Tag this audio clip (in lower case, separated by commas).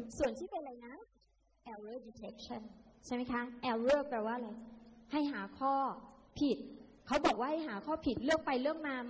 speech